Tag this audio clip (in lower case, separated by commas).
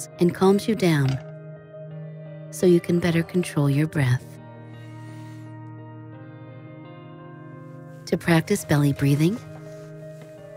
music, speech